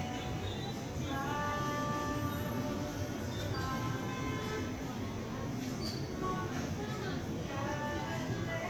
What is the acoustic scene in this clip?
crowded indoor space